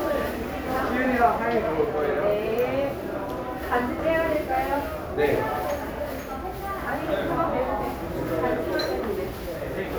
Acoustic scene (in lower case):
crowded indoor space